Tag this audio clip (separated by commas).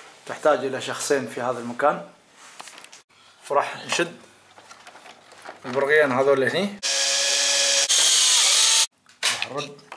Speech, Drill